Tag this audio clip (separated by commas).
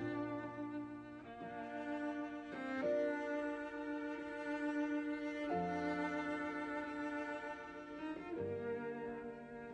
Orchestra, Classical music, Cello, Musical instrument, Music, Violin, Opera